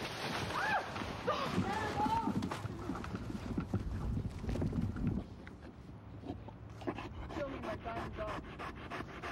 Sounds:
Speech

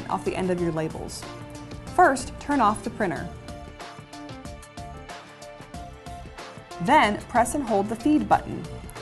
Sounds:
Speech, Music

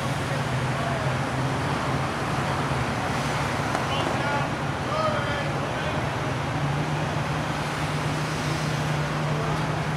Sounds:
Speech

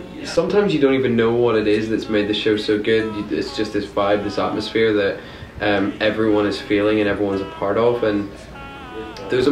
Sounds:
Speech

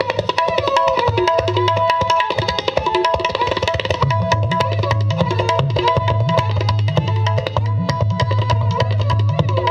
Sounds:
playing tabla

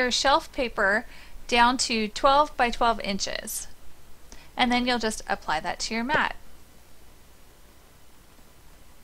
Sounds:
Speech

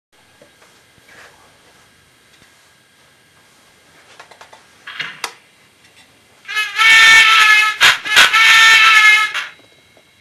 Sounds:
inside a small room

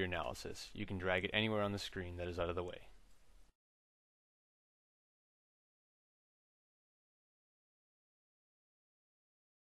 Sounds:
Speech

